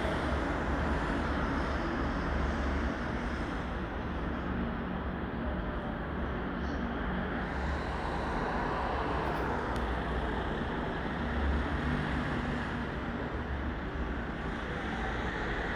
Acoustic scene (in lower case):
street